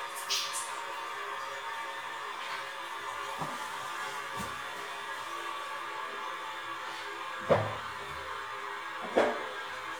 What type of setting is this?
restroom